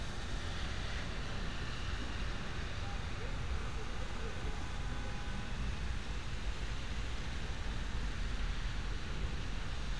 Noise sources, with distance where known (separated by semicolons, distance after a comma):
car horn, far